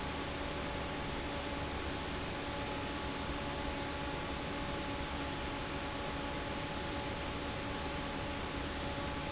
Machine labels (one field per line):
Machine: fan